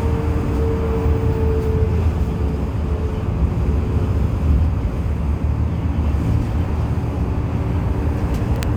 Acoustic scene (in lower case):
bus